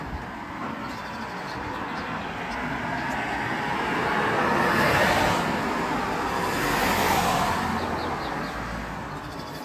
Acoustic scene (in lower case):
street